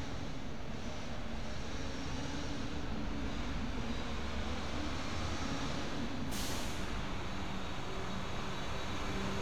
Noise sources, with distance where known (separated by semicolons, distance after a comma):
engine of unclear size